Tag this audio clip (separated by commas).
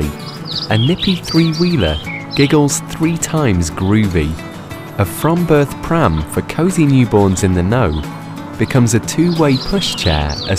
Speech, Music